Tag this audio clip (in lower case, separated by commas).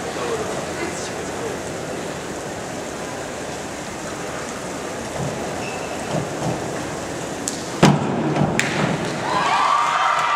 thud